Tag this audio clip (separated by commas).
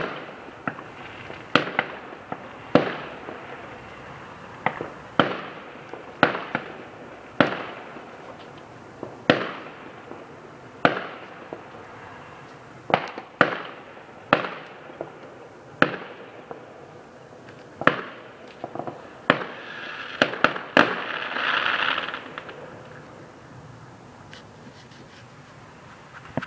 Explosion, Fireworks